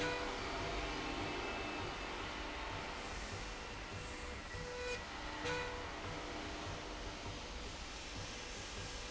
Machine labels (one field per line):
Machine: slide rail